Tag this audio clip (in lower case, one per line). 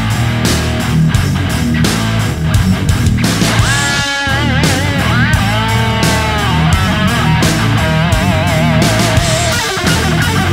music